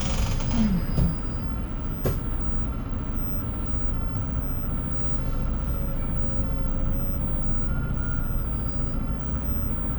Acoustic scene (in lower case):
bus